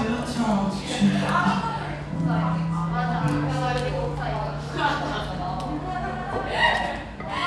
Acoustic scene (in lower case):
cafe